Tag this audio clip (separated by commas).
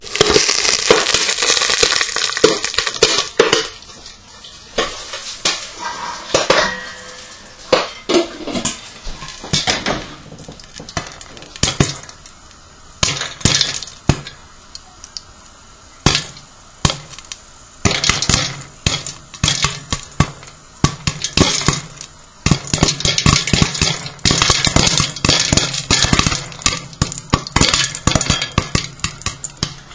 Frying (food), Domestic sounds